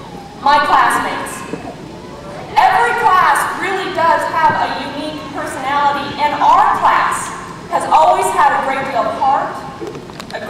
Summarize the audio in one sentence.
A female speaks over small background crowd noises